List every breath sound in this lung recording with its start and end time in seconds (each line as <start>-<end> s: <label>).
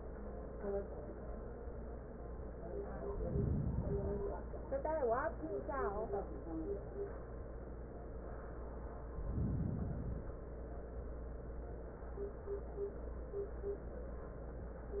3.07-4.29 s: inhalation
9.15-10.31 s: inhalation